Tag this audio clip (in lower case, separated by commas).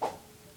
swoosh